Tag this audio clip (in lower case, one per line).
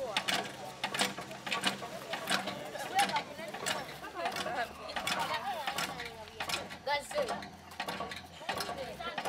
speech